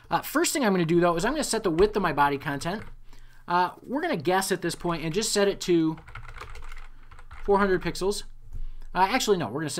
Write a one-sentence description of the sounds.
A man talking while typing on a computer keyboard